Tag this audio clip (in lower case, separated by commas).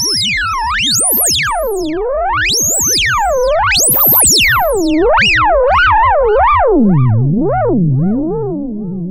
music, theremin, synthesizer